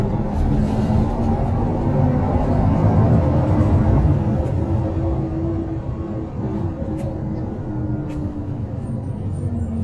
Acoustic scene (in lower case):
bus